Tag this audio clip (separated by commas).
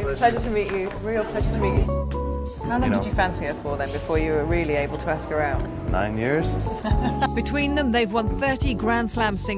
Music, Speech